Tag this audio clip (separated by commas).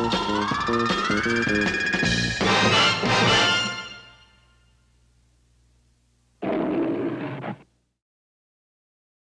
Music